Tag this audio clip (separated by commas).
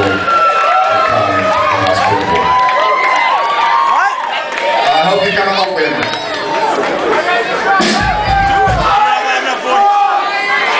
Music, Speech